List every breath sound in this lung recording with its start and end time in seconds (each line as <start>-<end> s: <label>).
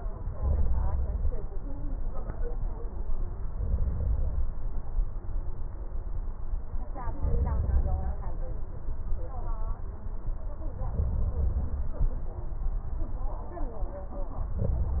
0.34-1.35 s: inhalation
3.47-4.48 s: inhalation
7.21-8.22 s: inhalation
10.88-12.03 s: inhalation
14.45-15.00 s: inhalation